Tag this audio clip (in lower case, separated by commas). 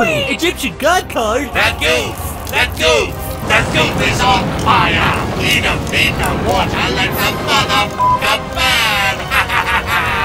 music, speech